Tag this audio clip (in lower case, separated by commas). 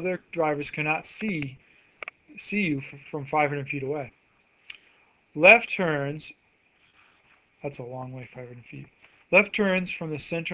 speech